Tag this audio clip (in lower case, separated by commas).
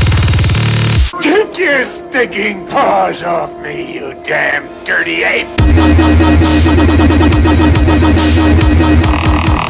electronic music, dubstep, music